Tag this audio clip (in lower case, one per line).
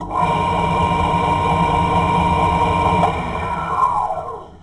tools
engine